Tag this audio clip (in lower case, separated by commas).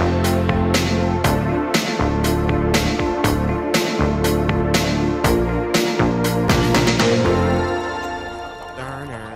music, speech